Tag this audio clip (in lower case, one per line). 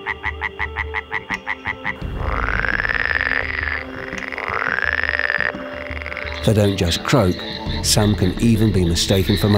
frog croaking